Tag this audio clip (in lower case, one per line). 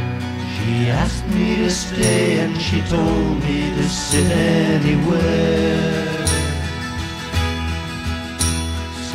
music